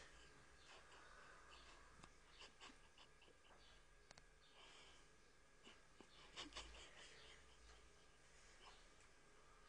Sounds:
animal, cat, domestic animals

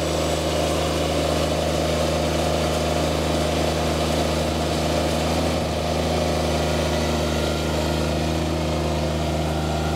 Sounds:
engine, engine accelerating, vehicle, medium engine (mid frequency), vroom

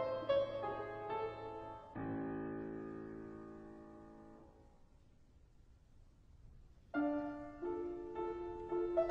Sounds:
music, soul music

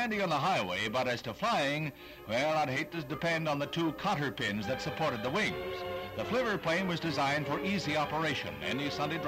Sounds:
music, speech

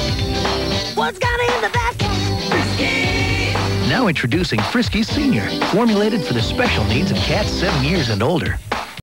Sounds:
music, speech

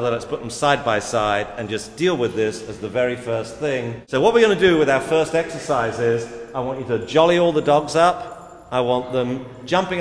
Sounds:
speech

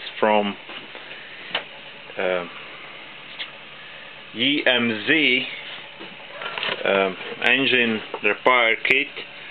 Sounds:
speech, engine

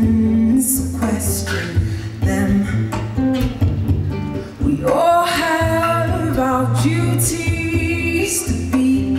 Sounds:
music, female singing

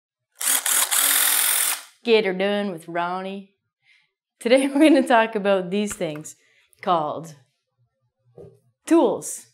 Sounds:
power tool, tools

